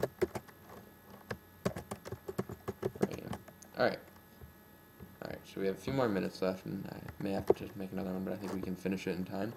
A man is tapping lightly on a keyboard and talking